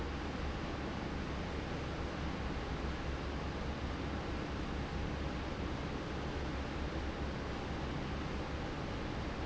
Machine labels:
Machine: fan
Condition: normal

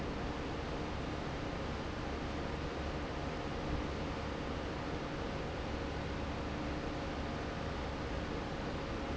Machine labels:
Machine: fan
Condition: normal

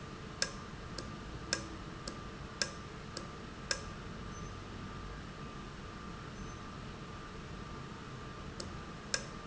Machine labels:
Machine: valve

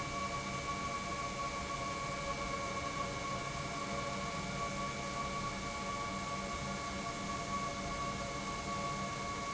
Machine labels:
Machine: pump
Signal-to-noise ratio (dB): -6 dB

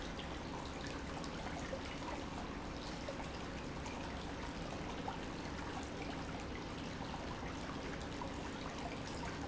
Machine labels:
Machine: pump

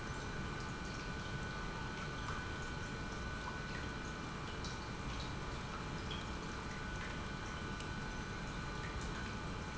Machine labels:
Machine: pump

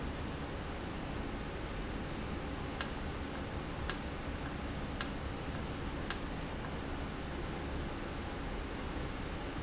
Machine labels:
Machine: valve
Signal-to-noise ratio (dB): -6 dB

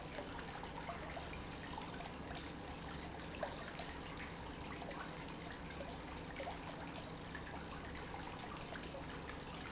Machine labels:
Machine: pump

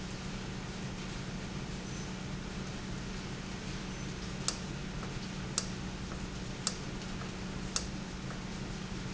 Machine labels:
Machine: valve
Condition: normal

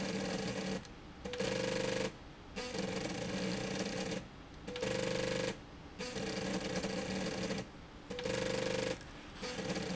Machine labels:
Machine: slide rail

